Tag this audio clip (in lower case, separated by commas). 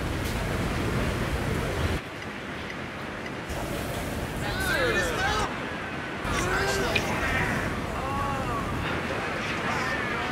speech